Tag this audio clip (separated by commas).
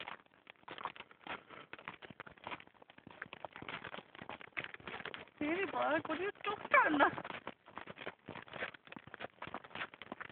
Speech